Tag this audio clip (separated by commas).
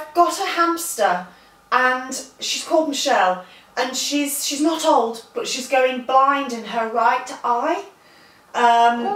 Speech